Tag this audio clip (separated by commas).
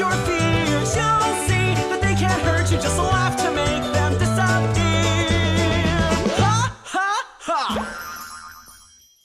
Music